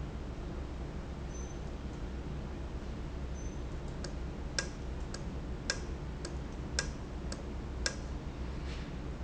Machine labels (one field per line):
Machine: valve